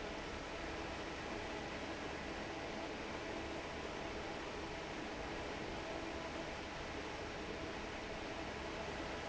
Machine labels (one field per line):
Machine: fan